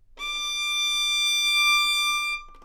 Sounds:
Bowed string instrument, Music, Musical instrument

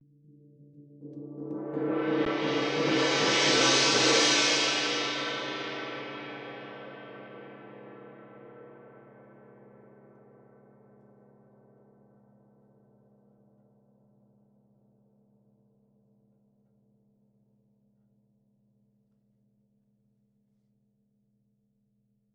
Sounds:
Musical instrument, Gong, Percussion, Music

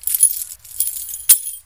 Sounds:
Domestic sounds, Keys jangling

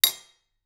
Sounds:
home sounds, Cutlery

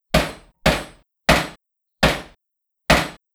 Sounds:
Hammer, Tools

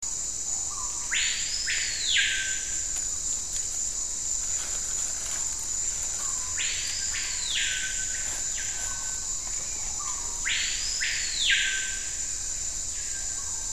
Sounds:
Bird, bird song, Wild animals, Animal

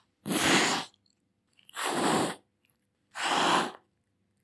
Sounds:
Cat, Animal, Domestic animals

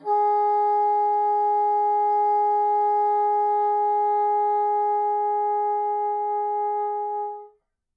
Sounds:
Music, Musical instrument, Wind instrument

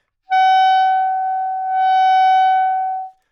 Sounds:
Wind instrument, Music, Musical instrument

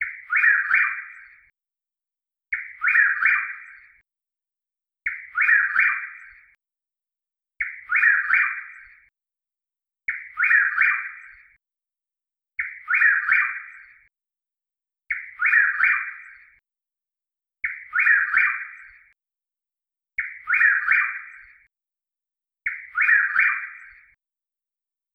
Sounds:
Bird, Animal, Wild animals, bird song

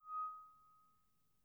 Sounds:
Screech, Glass

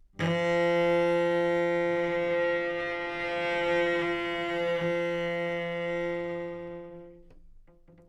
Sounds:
Music, Musical instrument, Bowed string instrument

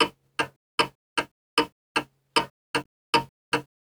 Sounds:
Mechanisms, Clock

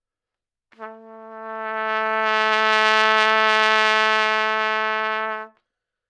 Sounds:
Trumpet, Brass instrument, Music, Musical instrument

